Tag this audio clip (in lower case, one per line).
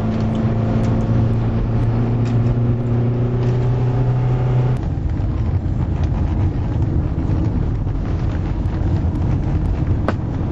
vehicle
outside, rural or natural